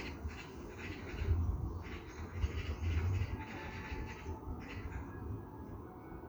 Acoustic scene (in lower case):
park